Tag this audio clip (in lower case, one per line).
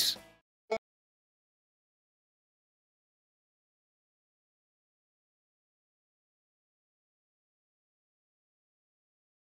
banjo
music
mandolin